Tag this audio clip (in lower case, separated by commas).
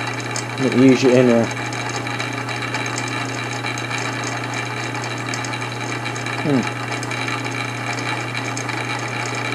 power tool, tools